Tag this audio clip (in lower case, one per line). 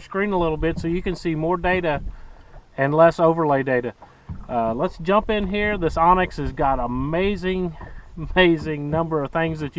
speech